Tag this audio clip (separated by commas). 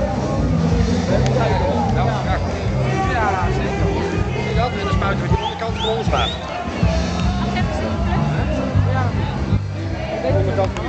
Music, Speech